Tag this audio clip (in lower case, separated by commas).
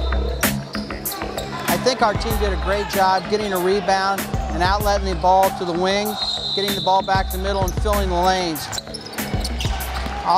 music, speech, basketball bounce